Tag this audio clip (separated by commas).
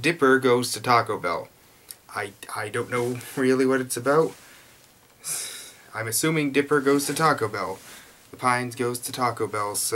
Speech